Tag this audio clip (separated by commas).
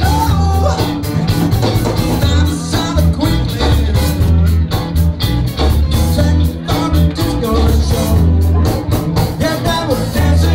Blues, Rhythm and blues, Music